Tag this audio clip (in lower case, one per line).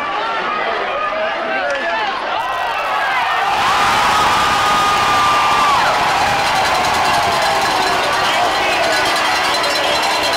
speech